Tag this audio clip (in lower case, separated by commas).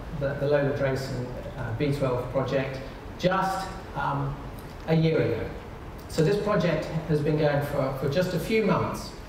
speech